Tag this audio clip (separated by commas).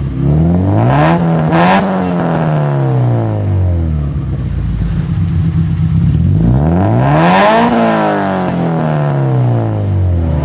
revving